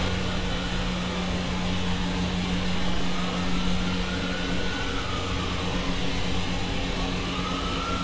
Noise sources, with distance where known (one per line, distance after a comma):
siren, far